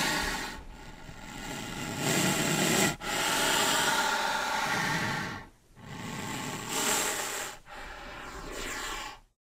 Inhales and exhales of heavy breathing